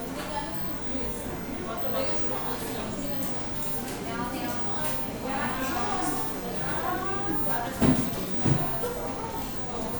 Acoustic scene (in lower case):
cafe